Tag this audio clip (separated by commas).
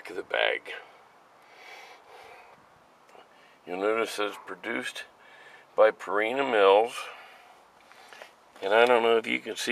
Speech